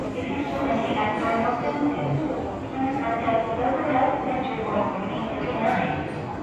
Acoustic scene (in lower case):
subway station